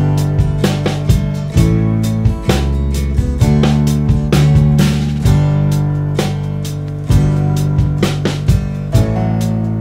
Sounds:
running electric fan

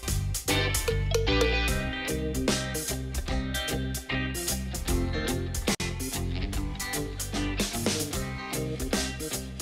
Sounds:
Music

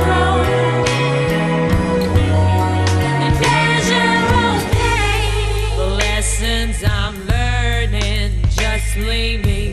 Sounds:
Music

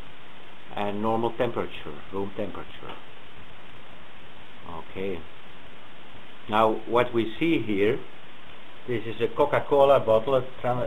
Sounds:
Speech, inside a small room

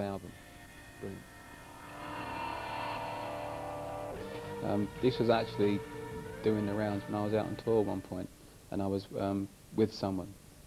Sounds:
Speech, Music

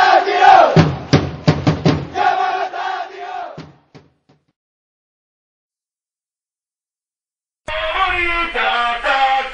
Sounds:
Chant, Vocal music, Music

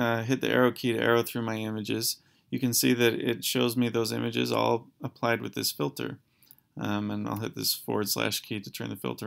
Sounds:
Speech

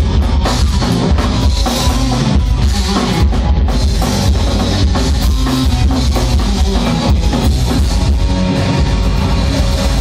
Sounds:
Snare drum, Rimshot, Drum kit, Drum, Percussion, Bass drum

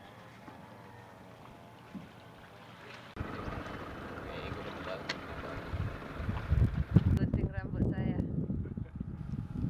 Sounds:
Sailboat, Speech

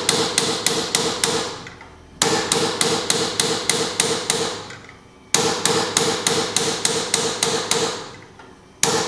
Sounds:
Hammer

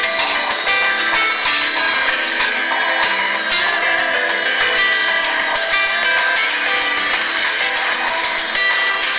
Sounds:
Music

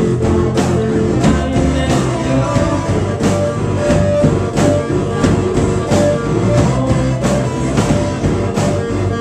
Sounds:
Music

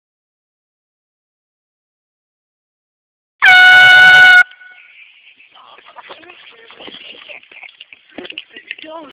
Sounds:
truck horn, Speech

